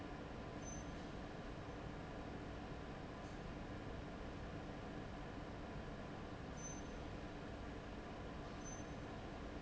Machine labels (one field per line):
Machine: fan